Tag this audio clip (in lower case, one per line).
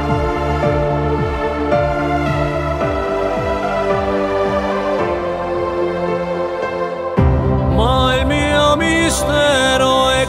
music